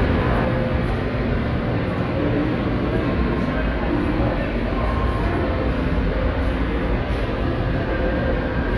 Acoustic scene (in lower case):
subway station